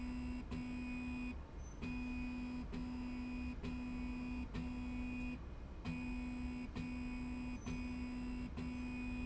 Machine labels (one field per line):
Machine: slide rail